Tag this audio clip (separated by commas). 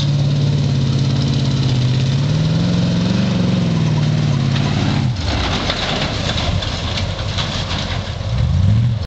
Vehicle